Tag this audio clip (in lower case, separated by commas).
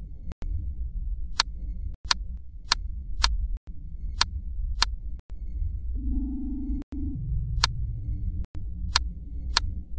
sound effect